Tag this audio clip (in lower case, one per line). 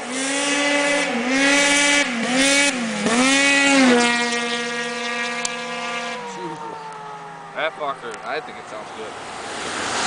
speech